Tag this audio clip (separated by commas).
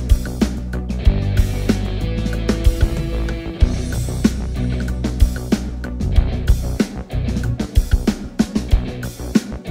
Musical instrument, Guitar, Music